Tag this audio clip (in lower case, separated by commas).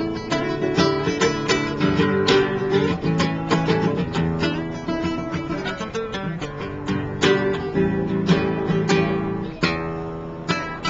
music, plucked string instrument, musical instrument, guitar, speech